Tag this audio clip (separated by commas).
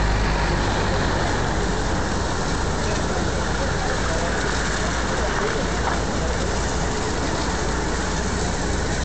Waterfall, Speech